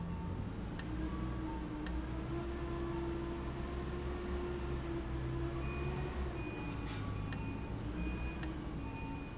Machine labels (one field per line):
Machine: valve